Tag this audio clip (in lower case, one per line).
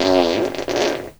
fart